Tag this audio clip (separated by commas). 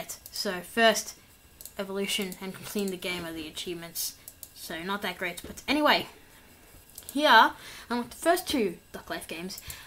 Speech